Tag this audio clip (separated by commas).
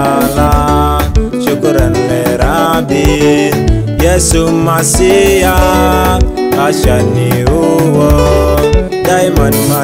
Music, Gospel music